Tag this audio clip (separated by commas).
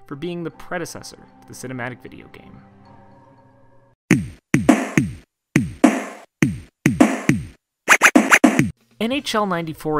Speech, Music